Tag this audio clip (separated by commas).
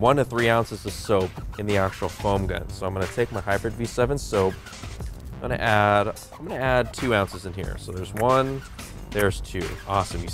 Music, Speech